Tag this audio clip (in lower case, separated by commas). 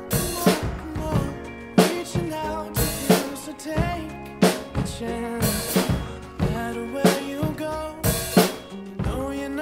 playing snare drum